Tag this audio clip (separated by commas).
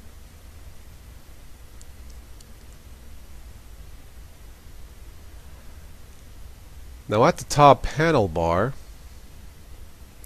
Speech, Silence